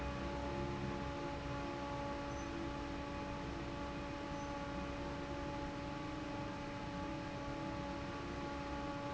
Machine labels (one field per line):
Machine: fan